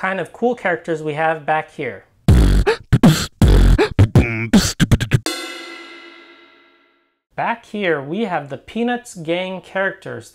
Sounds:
beatboxing

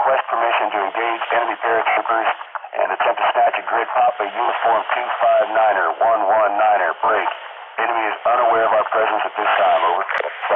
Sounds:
police radio chatter

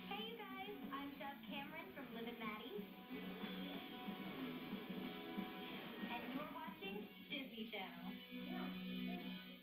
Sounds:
music, speech

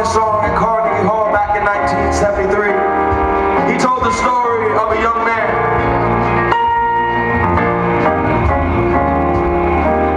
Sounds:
music, rhythm and blues, speech

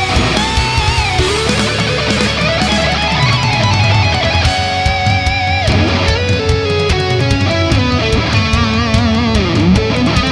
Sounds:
plucked string instrument, musical instrument, guitar, heavy metal, music

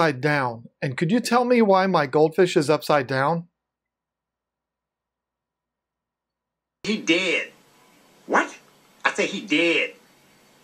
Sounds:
speech, inside a large room or hall

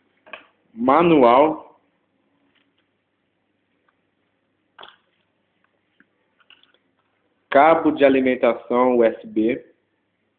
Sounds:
speech

